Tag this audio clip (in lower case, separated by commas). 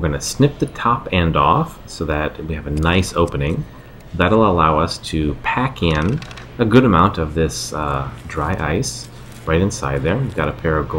speech